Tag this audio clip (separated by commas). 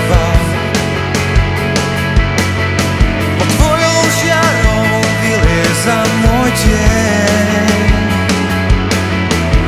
Exciting music, Music